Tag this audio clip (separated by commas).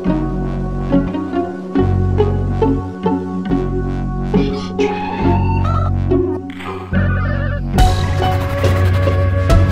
Music